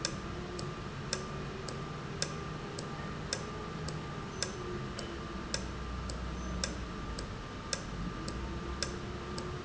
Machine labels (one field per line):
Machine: valve